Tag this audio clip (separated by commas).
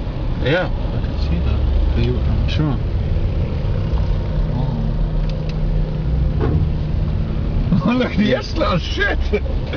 Speech